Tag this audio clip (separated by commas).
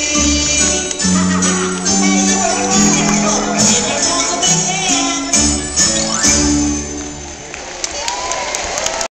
Music, Musical instrument